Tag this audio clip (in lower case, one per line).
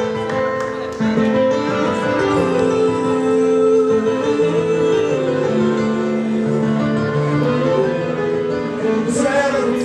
speech
music